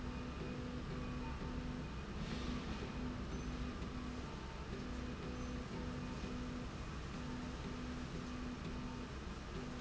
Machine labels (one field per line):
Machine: slide rail